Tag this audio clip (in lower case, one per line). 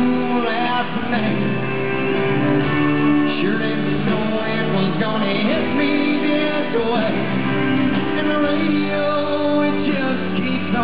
music